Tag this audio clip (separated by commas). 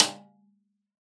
Percussion, Musical instrument, Music, Drum, Snare drum